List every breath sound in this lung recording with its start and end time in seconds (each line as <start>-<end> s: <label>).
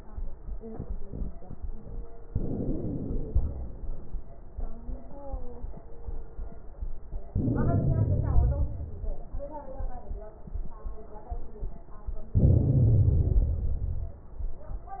2.26-3.36 s: inhalation
3.36-4.07 s: exhalation
7.31-8.61 s: inhalation
8.61-9.23 s: exhalation
12.37-13.43 s: inhalation
13.43-14.19 s: exhalation